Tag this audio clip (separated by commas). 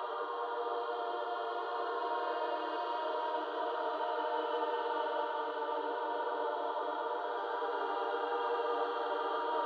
Music